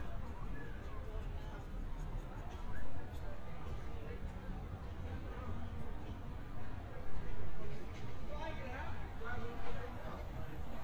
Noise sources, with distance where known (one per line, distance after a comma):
person or small group shouting, far